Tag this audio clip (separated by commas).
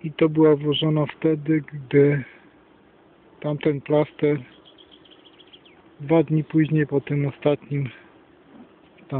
Insect, Speech